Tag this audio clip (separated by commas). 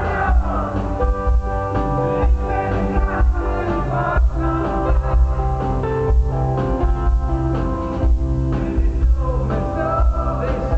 Music